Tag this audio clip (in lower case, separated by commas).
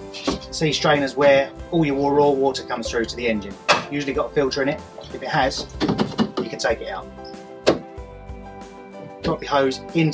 music, speech